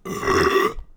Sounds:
burping

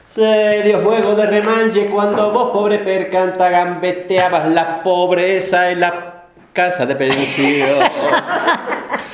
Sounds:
human voice
laughter

